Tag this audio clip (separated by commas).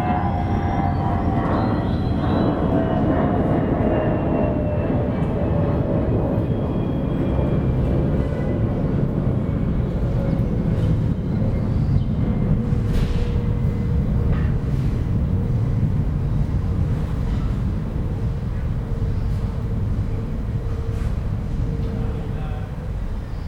Vehicle, Aircraft, Fixed-wing aircraft